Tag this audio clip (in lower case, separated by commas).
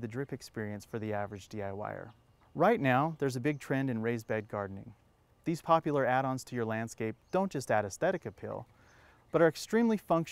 speech